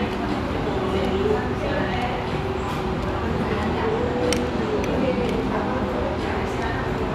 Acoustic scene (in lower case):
restaurant